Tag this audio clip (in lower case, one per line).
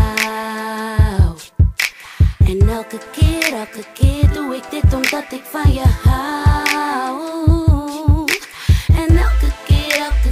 music
sound effect